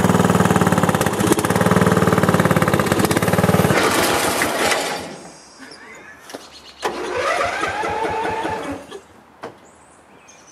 A motor is running and vibrating, rustling and crackling occur, the motor stops, and the motor attempts to start again